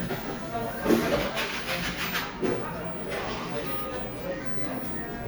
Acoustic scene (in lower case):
cafe